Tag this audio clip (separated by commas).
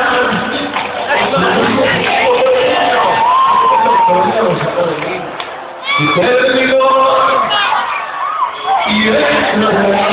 Speech, Music